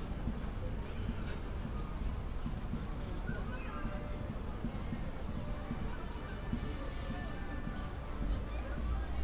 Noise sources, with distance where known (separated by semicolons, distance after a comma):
music from an unclear source, far; person or small group talking, far